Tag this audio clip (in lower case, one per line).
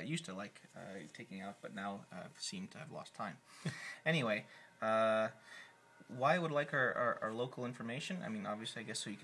speech